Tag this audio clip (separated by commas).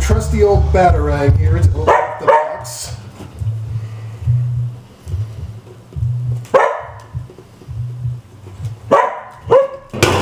Music, Speech